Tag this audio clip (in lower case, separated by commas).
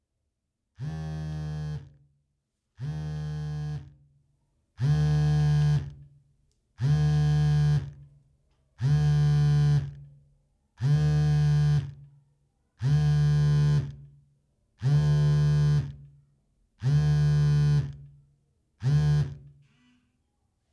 alarm, telephone